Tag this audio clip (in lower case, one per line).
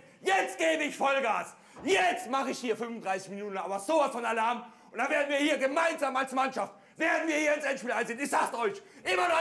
speech